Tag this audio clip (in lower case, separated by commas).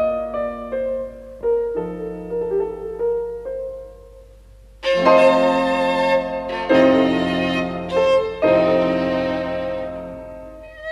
music, musical instrument, fiddle